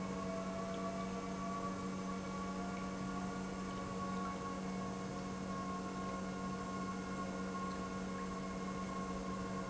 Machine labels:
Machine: pump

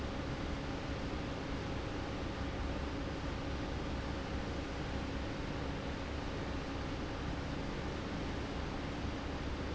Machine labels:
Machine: fan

